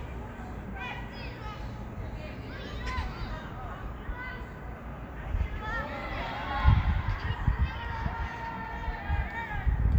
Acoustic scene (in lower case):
park